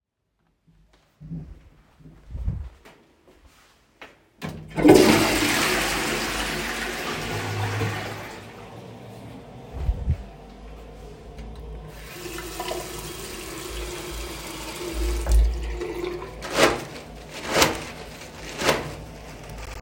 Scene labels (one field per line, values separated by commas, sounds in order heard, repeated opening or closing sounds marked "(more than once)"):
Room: lavatory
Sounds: footsteps, toilet flushing, running water